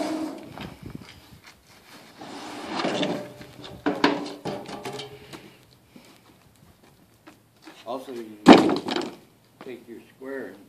A sliding and banging noise with a voice in the background